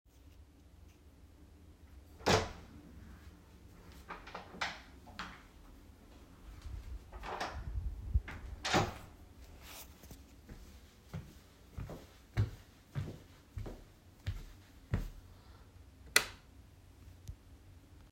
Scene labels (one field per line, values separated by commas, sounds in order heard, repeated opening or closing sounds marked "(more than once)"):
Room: bedroom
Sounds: door (more than once), footsteps, light switch